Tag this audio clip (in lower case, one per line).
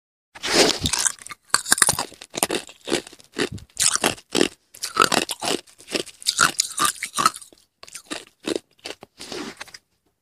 mastication